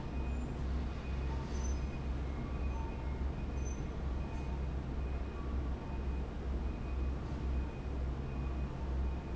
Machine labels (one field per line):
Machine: fan